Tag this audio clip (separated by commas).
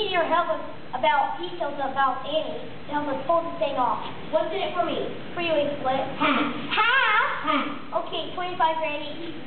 Speech